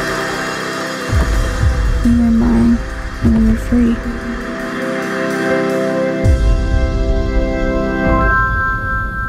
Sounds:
Horse, Animal, Music, Speech

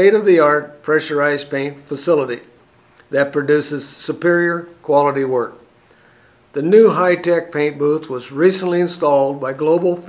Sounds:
Speech

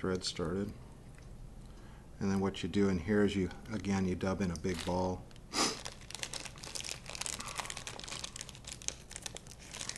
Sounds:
crinkling, Speech

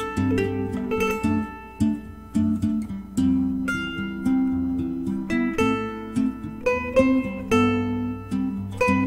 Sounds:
Plucked string instrument, Musical instrument, Music, Guitar, Strum, Acoustic guitar

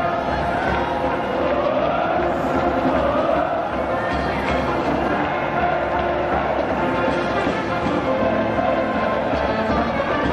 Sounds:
people cheering

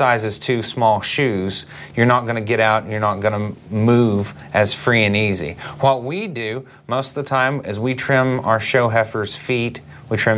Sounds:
Speech

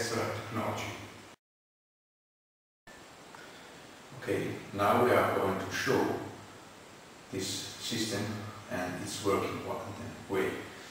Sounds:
Speech

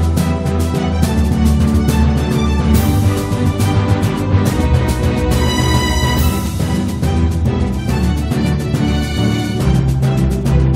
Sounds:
Soundtrack music, Music

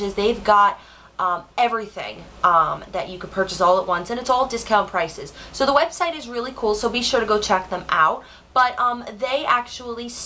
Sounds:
Speech

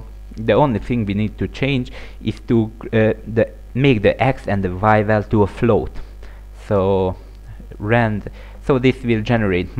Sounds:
Speech

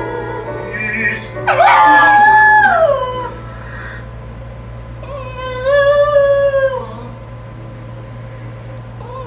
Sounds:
Dog, Howl, Domestic animals, Music, Animal, Yip, Whimper (dog), Male singing

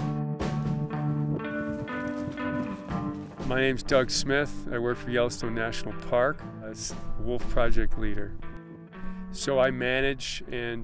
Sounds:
Speech, Music

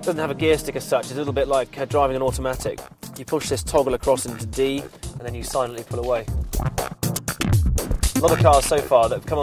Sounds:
Music, Speech

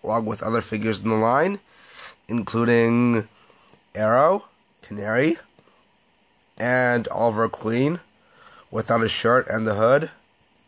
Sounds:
Speech

